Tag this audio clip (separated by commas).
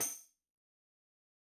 Tambourine, Percussion, Music, Musical instrument